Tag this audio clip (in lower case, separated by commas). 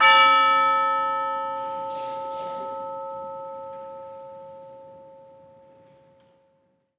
music, musical instrument, percussion